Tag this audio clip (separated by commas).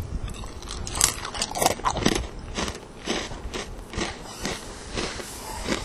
Chewing